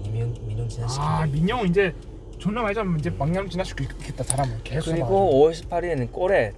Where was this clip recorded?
in a car